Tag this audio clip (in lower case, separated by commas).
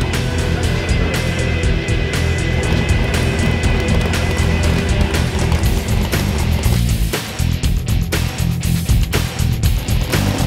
music, car, vehicle